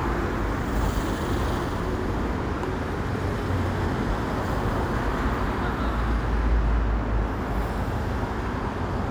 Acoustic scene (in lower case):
street